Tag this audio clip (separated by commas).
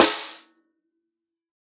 Drum, Music, Percussion, Snare drum, Musical instrument